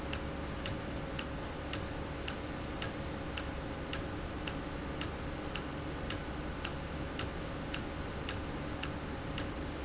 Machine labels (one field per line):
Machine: valve